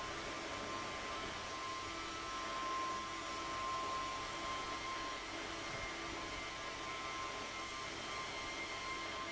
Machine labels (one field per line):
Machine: fan